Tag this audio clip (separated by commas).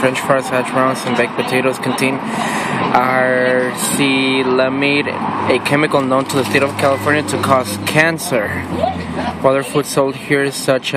Speech